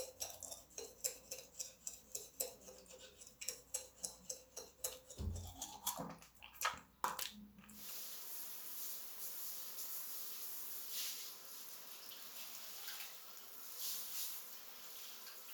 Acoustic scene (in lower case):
restroom